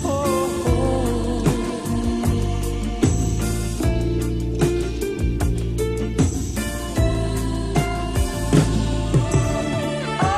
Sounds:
soul music

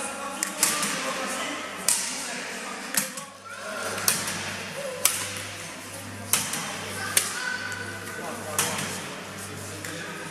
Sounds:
playing badminton

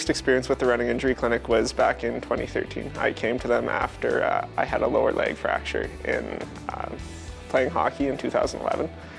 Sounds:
speech
music
inside a small room

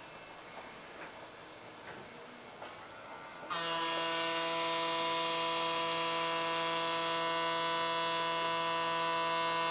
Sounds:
electric razor shaving

